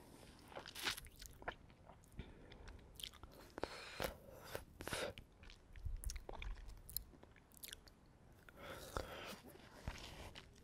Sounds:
people slurping

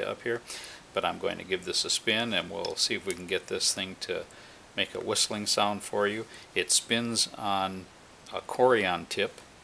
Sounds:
Speech

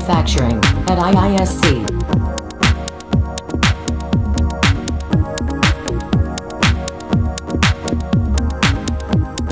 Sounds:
Music, Speech

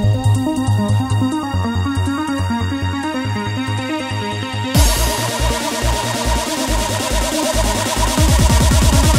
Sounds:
Music

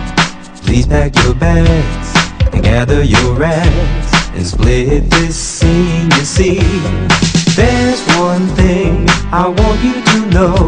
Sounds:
Music, Funk

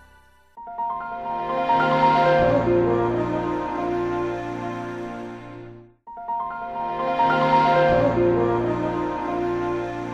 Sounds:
Echo, Music

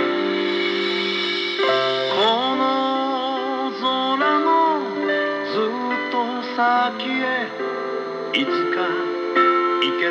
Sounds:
Music, Radio

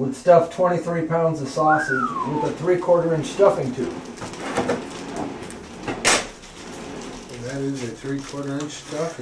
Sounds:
inside a small room, Speech

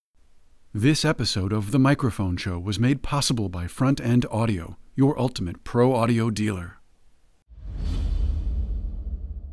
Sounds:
Speech, Music

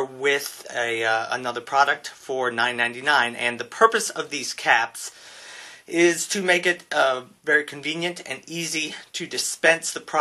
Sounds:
Speech

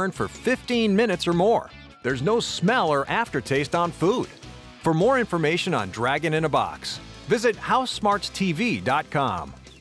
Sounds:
Speech, Music

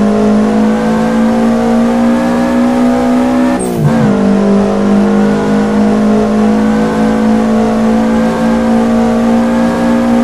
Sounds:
Vehicle, Car, Accelerating

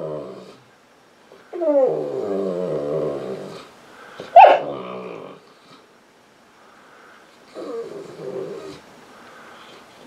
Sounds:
dog whimpering

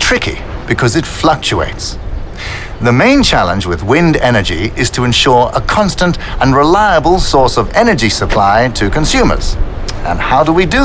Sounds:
Speech

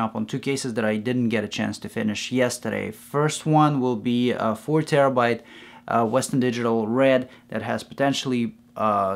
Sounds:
Speech

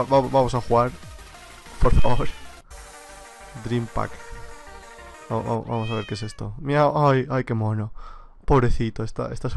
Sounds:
Music, Speech, Techno

